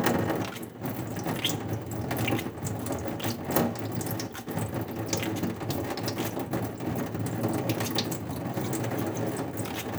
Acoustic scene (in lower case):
restroom